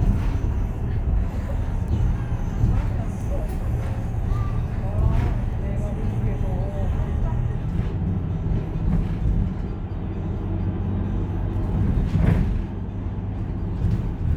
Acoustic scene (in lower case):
bus